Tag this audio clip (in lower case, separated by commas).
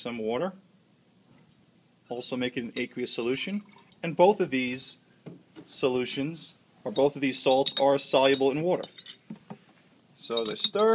speech, liquid